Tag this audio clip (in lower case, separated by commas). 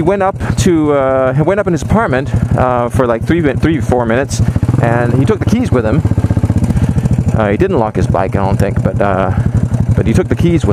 speech, vehicle, motorcycle